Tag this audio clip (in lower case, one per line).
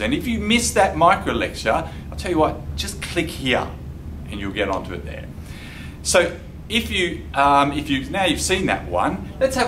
speech